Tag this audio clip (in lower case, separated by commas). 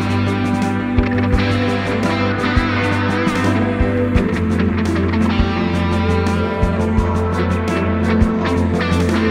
music, plucked string instrument, musical instrument, bass guitar